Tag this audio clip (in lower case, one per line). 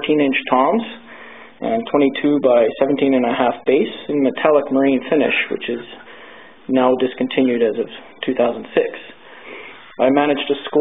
speech